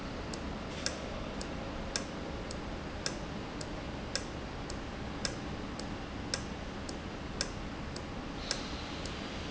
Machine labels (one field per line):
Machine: valve